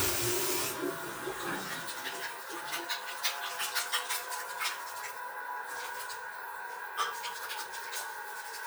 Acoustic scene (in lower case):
restroom